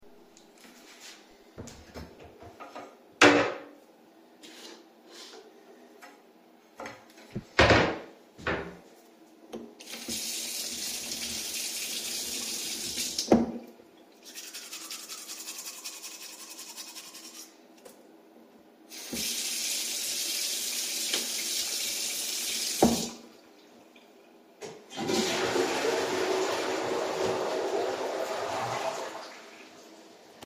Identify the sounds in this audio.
wardrobe or drawer, running water, toilet flushing